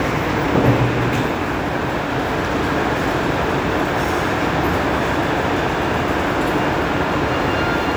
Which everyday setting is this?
subway station